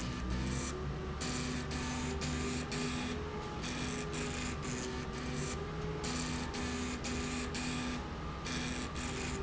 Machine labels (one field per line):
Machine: slide rail